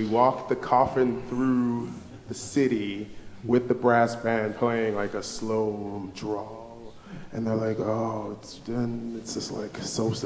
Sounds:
speech

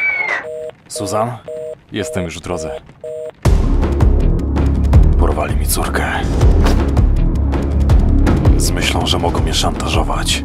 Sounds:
speech
music

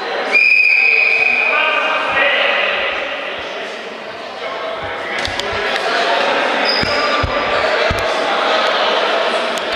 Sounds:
basketball bounce

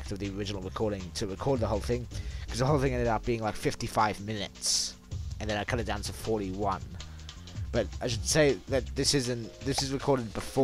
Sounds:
speech
music

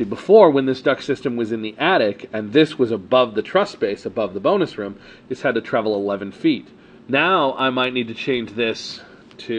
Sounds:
speech

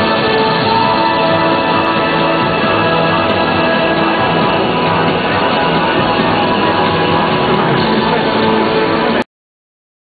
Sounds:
music

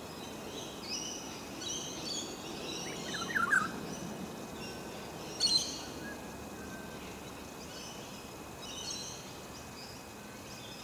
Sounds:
baltimore oriole calling

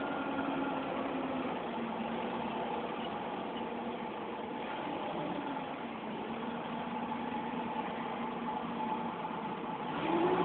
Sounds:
bus
vehicle

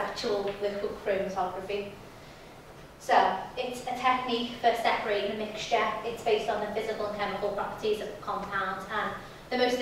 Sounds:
speech

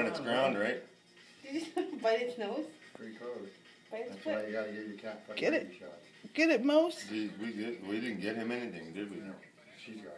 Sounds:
speech

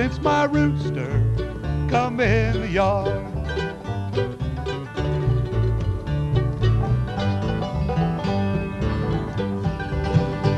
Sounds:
music

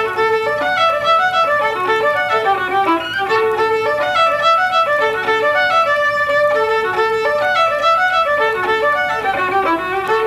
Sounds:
music
musical instrument
fiddle

